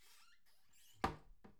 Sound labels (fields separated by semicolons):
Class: cupboard; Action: closing; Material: wooden